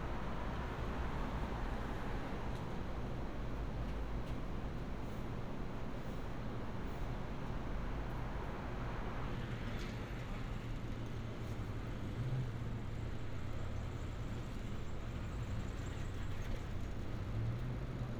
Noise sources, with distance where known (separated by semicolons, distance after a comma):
engine of unclear size